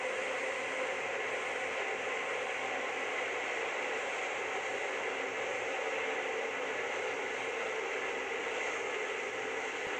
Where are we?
on a subway train